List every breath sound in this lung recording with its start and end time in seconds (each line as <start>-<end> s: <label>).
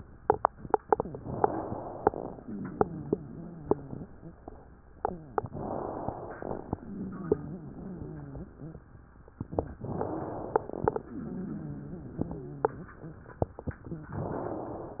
0.76-2.02 s: inhalation
2.33-4.10 s: exhalation
2.33-4.10 s: wheeze
5.41-6.67 s: inhalation
6.79-8.90 s: exhalation
6.79-8.90 s: wheeze
9.79-10.94 s: inhalation
11.16-13.26 s: exhalation
11.16-13.26 s: wheeze
13.79-14.16 s: wheeze
14.23-15.00 s: inhalation